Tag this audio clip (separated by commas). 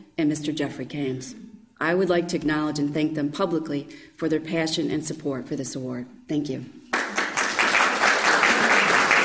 Speech